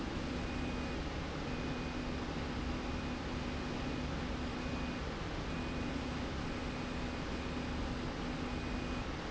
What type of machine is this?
slide rail